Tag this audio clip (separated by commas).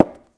Tap